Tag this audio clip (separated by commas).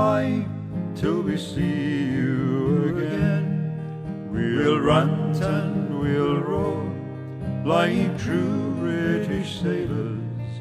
Music